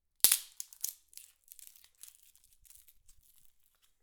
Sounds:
wood

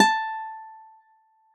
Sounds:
musical instrument, acoustic guitar, music, plucked string instrument, guitar

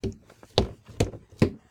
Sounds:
walk, wood

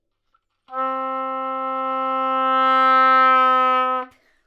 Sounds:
music, musical instrument, wind instrument

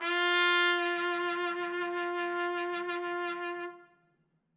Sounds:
trumpet, brass instrument, music, musical instrument

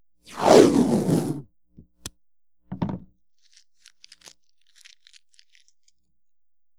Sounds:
packing tape, domestic sounds

